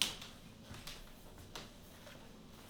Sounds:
squeak

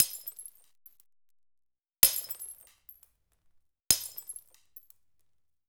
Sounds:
shatter
glass

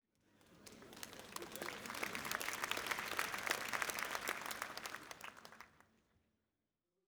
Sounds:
human group actions
crowd
applause

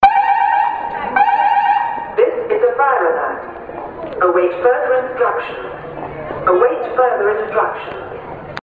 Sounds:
alarm

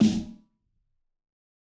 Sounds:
musical instrument
snare drum
drum
percussion
music

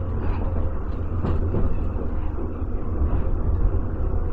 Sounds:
rail transport
underground
vehicle

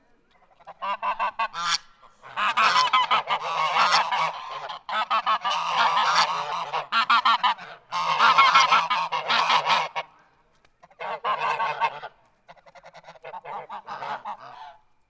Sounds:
animal
fowl
livestock

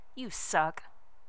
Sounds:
human voice
speech
female speech

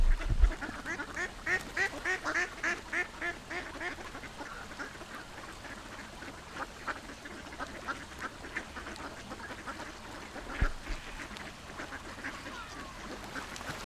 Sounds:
animal
fowl
livestock

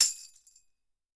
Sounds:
percussion
tambourine
musical instrument
music

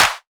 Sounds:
hands
clapping

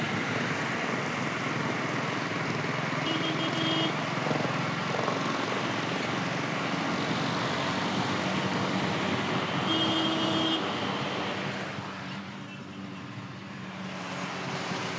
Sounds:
traffic noise
motor vehicle (road)
vehicle

